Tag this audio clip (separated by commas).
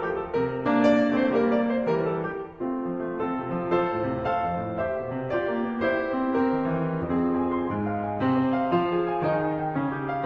Piano, Music